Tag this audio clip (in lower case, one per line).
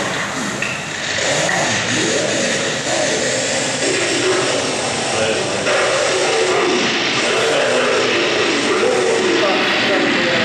speech